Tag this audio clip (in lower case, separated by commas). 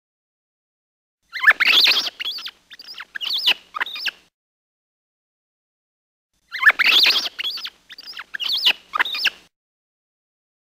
mouse squeaking